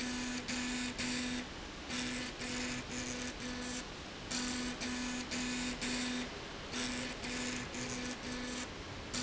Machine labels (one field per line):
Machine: slide rail